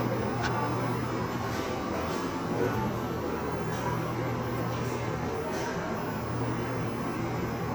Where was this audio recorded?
in a cafe